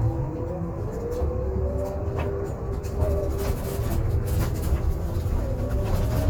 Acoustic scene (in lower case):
bus